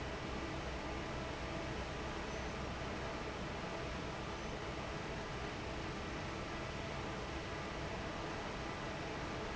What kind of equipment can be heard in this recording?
fan